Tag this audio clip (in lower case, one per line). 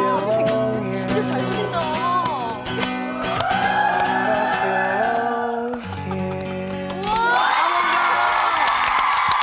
music
speech